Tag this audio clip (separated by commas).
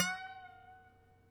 Harp, Music, Musical instrument